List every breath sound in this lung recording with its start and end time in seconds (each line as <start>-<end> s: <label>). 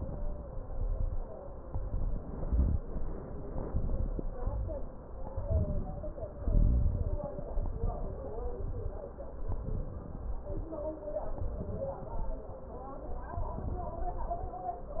0.00-0.55 s: inhalation
0.00-0.55 s: crackles
0.59-1.38 s: exhalation
0.59-1.38 s: crackles
1.63-2.28 s: inhalation
1.63-2.28 s: crackles
2.31-2.96 s: exhalation
2.31-2.96 s: crackles
3.48-4.18 s: inhalation
3.48-4.18 s: crackles
4.33-4.96 s: exhalation
4.33-4.96 s: crackles
5.43-6.15 s: inhalation
5.43-6.15 s: crackles
6.42-7.22 s: exhalation
6.42-7.22 s: crackles
7.51-8.30 s: inhalation
7.51-8.30 s: crackles
8.34-9.06 s: exhalation
8.34-9.06 s: crackles
9.54-10.26 s: inhalation
9.54-10.26 s: crackles
10.30-10.96 s: exhalation
10.30-10.96 s: crackles
11.35-12.14 s: inhalation
11.35-12.14 s: crackles
12.16-12.81 s: exhalation
12.16-12.81 s: crackles
13.34-13.99 s: inhalation
13.34-13.99 s: crackles
14.02-14.67 s: exhalation
14.02-14.67 s: crackles